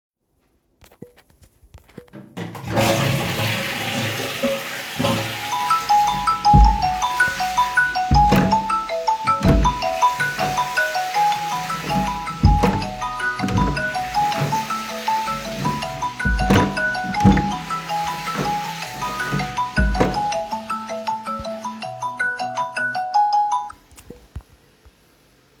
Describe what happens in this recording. I flushed the toilet, and then my phone started ringing. At the same time, I was entering and exiting the toilet room.